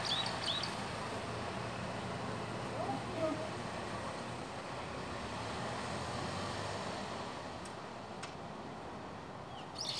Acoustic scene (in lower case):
residential area